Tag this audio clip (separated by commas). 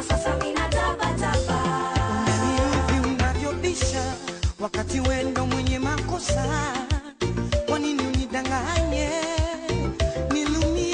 Music of Africa, Soul music